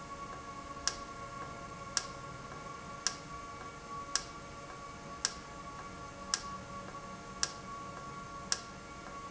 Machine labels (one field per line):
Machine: valve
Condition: normal